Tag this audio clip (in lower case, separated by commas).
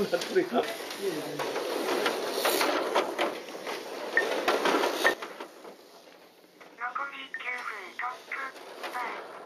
speech